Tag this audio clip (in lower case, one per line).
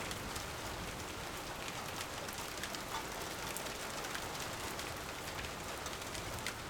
rain
water